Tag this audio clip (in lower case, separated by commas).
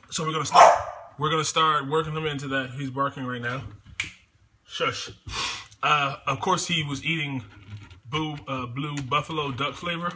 pets, speech, dog, animal, bow-wow